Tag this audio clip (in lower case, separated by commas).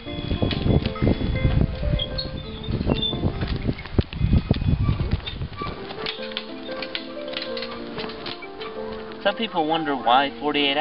music, animal, speech